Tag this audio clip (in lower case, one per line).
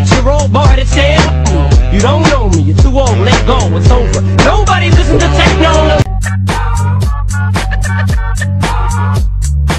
electronic music
music
techno